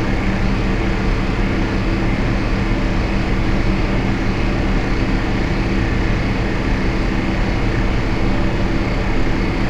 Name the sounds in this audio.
unidentified powered saw